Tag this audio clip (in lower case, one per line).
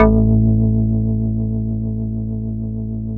musical instrument
keyboard (musical)
music
organ